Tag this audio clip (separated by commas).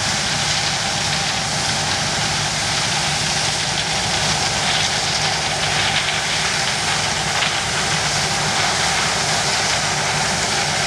outside, rural or natural, Vehicle